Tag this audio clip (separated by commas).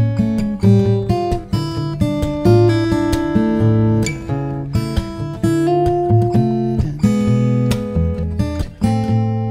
Musical instrument, Guitar, Plucked string instrument, Music